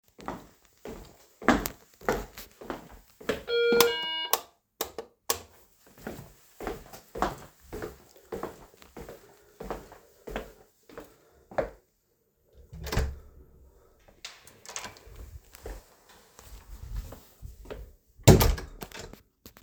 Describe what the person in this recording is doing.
I am walking to the door and switching on the lights to open someone the door who is ringing.